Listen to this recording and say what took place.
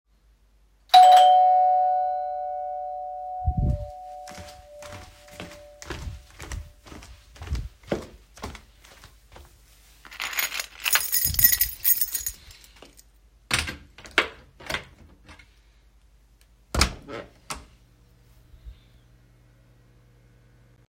The doorbell rang. I walked towards the door and picked up my keys and inserted the key into the lock and opened it. Finally I opened the door